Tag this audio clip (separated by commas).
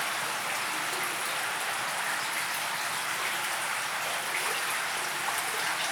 Water, Stream